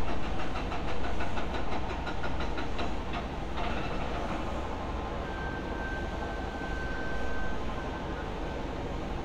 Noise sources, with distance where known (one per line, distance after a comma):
hoe ram, far